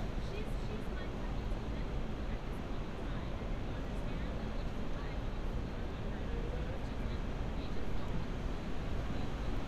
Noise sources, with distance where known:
person or small group talking

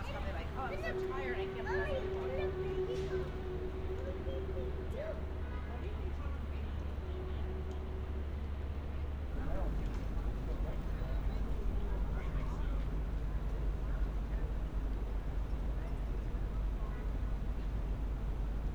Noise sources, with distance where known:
person or small group talking

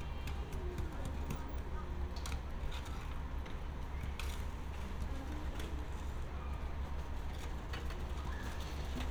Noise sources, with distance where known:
unidentified human voice, far

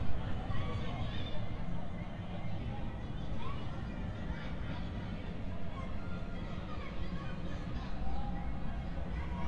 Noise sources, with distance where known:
person or small group talking

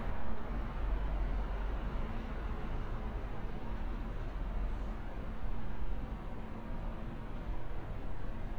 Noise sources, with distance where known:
large-sounding engine, far

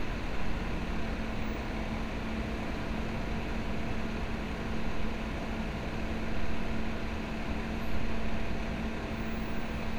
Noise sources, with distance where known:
large-sounding engine

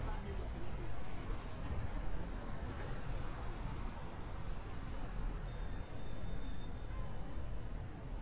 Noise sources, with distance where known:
unidentified human voice

